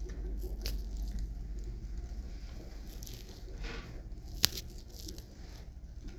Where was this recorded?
in an elevator